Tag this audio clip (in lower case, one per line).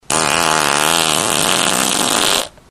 fart